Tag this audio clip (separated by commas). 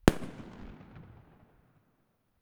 Fireworks, Explosion